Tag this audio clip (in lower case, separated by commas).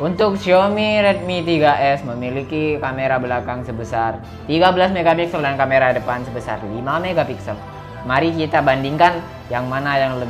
music, speech